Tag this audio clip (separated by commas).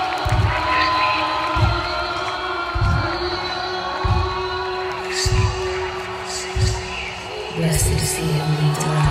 Speech, Music